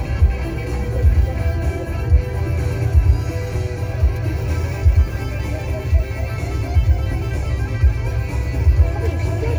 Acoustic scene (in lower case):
car